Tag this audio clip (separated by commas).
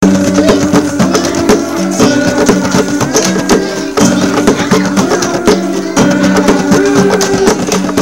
Human voice